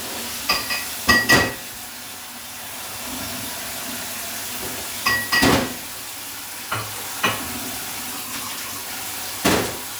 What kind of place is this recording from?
kitchen